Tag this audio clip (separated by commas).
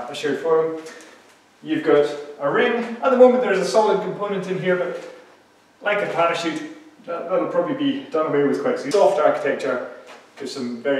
Speech